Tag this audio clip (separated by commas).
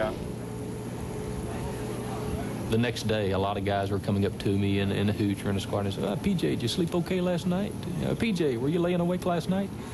Speech